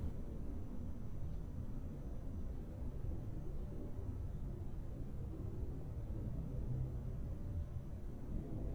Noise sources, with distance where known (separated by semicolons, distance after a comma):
background noise